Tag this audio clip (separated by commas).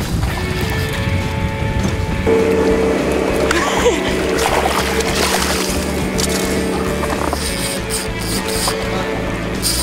Music